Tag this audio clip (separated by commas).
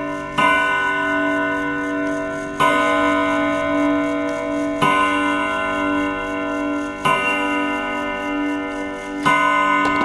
Clock